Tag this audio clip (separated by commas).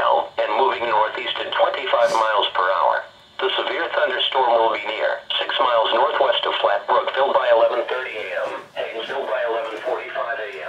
Radio, Speech